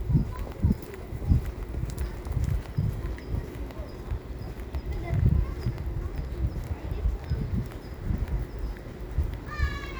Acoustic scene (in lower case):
residential area